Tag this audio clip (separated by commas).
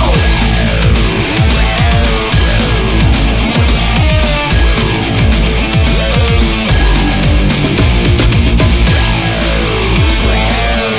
Music, Angry music